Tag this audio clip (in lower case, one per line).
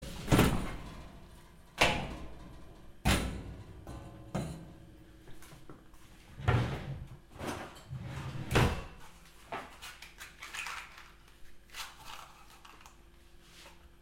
domestic sounds
drawer open or close